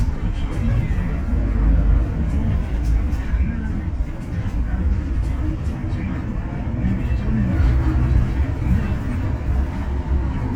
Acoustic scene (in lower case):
bus